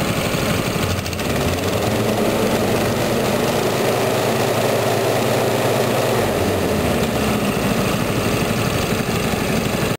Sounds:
Medium engine (mid frequency), Idling, Vehicle, revving, Engine

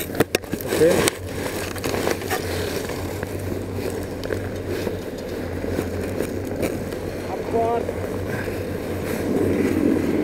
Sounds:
Speech

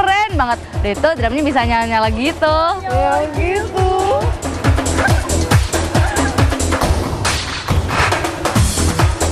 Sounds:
Music, Speech, Wood block

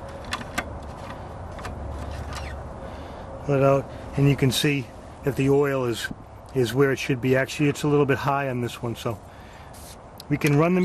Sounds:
Speech

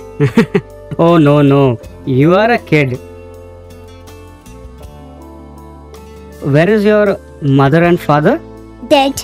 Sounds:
Speech, Music

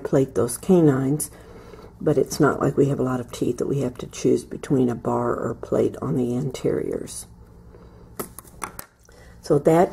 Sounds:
Speech

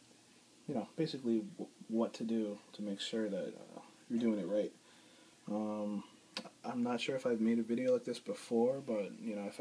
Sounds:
inside a small room, Speech

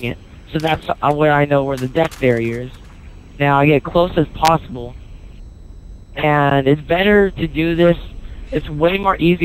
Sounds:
Speech

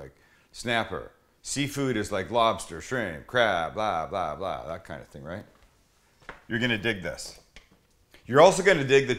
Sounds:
Speech

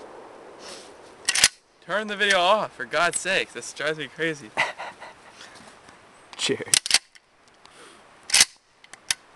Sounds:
Speech

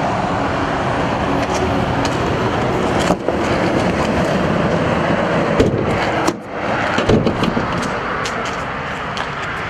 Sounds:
Vehicle, roadway noise

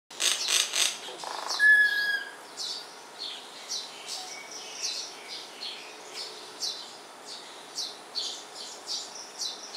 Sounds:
mynah bird singing

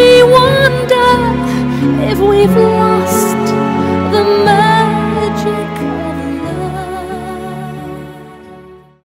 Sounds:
Music

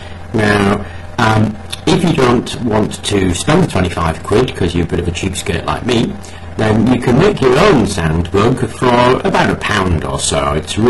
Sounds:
Speech

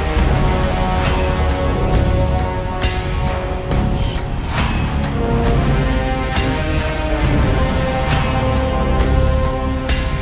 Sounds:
Music

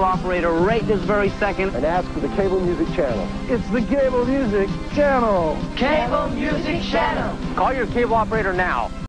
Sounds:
Speech, Music

